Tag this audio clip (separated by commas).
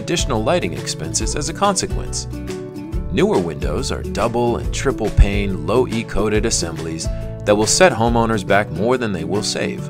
Music, Speech